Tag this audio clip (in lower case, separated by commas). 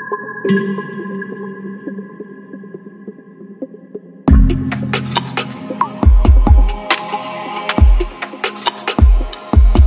music, electronica